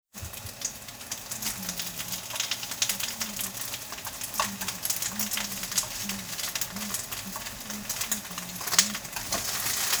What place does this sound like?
kitchen